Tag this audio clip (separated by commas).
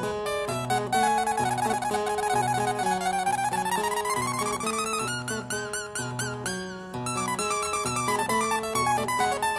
playing harpsichord